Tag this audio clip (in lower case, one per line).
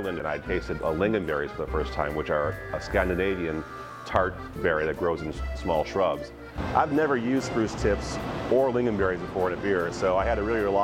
speech
music